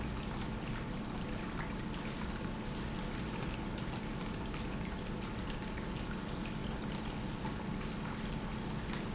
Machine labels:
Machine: pump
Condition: normal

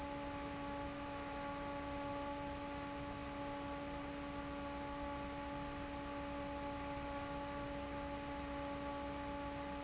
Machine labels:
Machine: fan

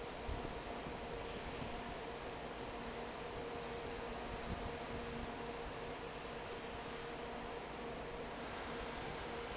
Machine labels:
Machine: fan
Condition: normal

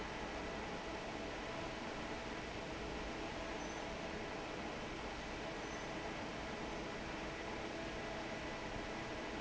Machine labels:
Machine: fan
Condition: normal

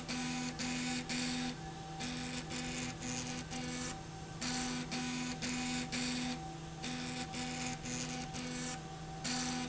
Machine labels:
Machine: slide rail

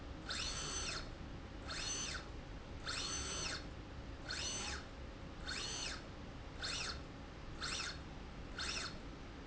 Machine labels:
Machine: slide rail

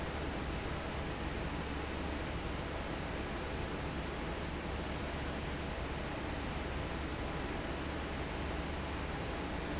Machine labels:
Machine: fan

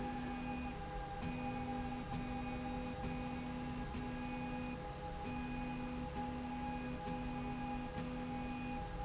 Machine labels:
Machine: slide rail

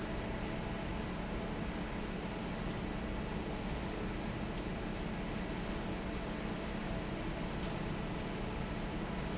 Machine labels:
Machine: fan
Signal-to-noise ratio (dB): -6 dB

